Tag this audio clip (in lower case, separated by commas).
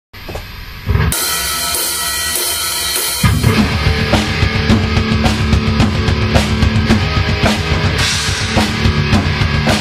bass drum, percussion, snare drum, rimshot, drum, drum kit